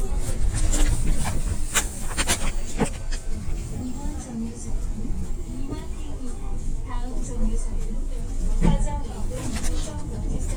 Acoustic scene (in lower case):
bus